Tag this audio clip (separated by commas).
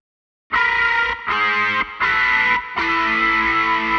Plucked string instrument, Guitar, Music, Musical instrument